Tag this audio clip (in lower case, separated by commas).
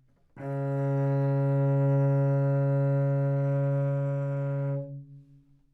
music, musical instrument, bowed string instrument